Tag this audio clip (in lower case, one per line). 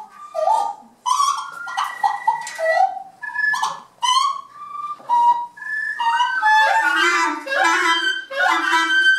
woodwind instrument
music
musical instrument